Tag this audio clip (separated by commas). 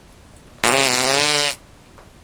Fart